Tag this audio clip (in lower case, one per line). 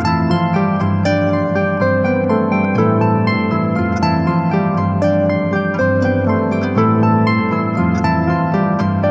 playing harp